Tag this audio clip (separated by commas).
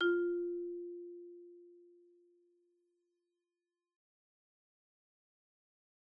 Musical instrument, Percussion, xylophone, Mallet percussion, Music